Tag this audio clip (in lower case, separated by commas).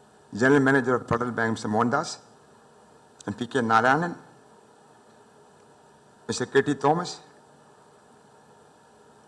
speech, man speaking, narration